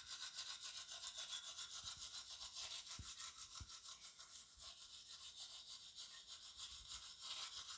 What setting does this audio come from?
restroom